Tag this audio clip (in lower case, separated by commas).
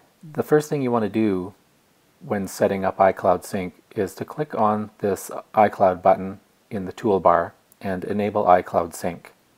speech